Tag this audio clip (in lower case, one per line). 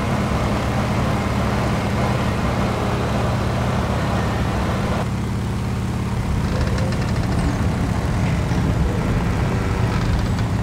vehicle